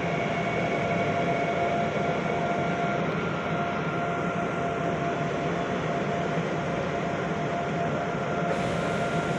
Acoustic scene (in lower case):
subway train